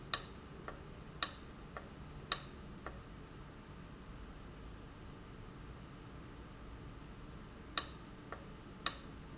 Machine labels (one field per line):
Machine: valve